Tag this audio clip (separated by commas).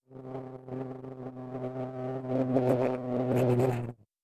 Wild animals, Insect, Buzz, Animal